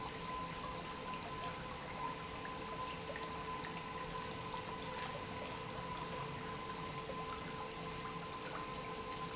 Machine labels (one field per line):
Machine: pump